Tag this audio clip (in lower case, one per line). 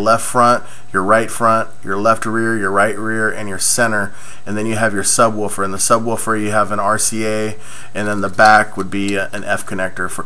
speech